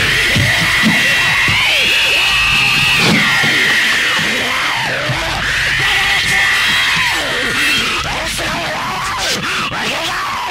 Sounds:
music

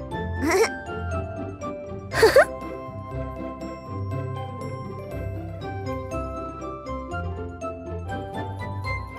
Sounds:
ice cream van

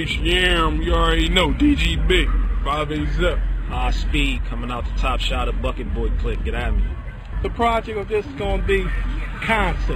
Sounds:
speech

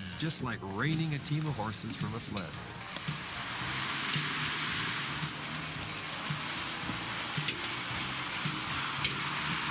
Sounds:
vehicle
truck
speech
music

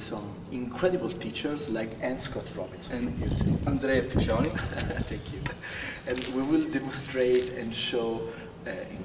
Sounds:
speech

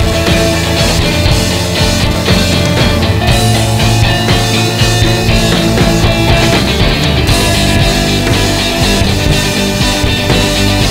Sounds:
psychedelic rock

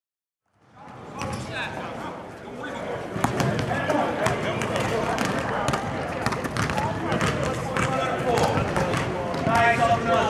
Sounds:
speech
inside a large room or hall
basketball bounce

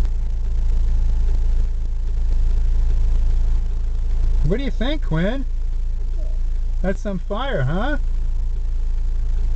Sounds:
speech

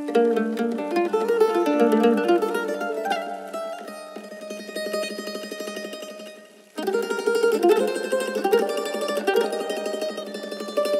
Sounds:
playing mandolin

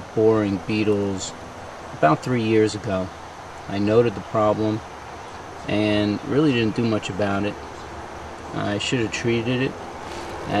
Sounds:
speech

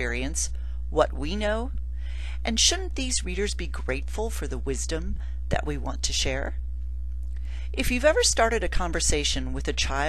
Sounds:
speech

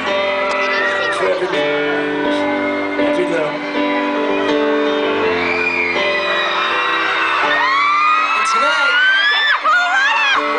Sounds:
speech
music

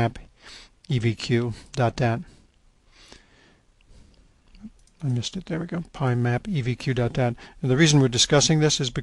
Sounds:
clicking
speech

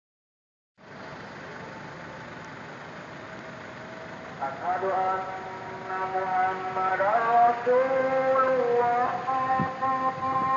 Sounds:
car
vehicle
outside, urban or man-made

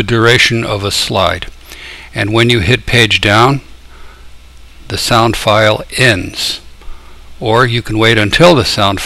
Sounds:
speech

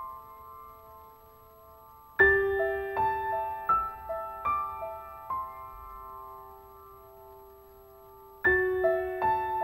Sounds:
music

